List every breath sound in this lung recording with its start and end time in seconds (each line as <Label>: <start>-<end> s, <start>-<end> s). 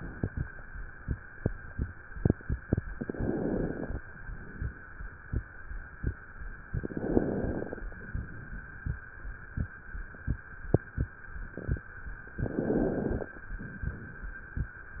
Inhalation: 2.93-4.04 s, 6.78-7.88 s, 12.37-13.37 s
Exhalation: 4.02-5.12 s, 7.92-9.03 s, 13.37-14.38 s